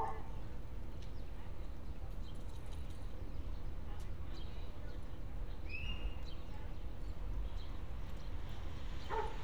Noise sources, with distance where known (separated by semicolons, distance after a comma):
dog barking or whining, far